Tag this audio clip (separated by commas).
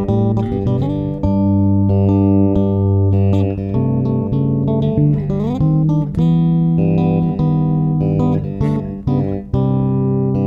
Music, Electronic tuner, Plucked string instrument, Musical instrument, Guitar